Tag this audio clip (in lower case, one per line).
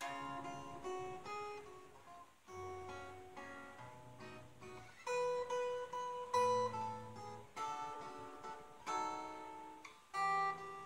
guitar
music
strum
musical instrument
plucked string instrument